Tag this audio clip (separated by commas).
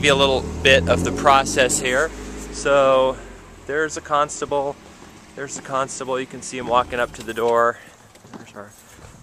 Speech, outside, urban or man-made